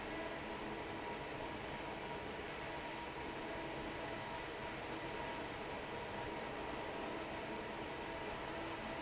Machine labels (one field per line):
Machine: fan